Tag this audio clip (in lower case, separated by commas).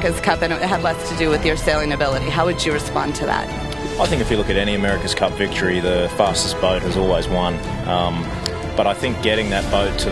speech, music